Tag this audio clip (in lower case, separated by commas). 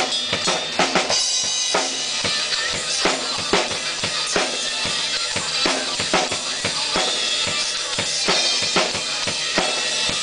music, musical instrument